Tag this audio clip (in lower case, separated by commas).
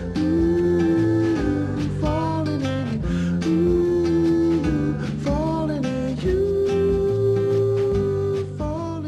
music